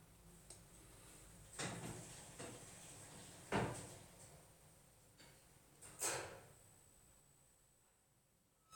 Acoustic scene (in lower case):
elevator